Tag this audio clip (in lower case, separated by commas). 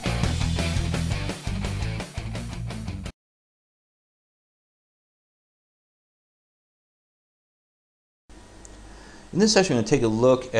speech, music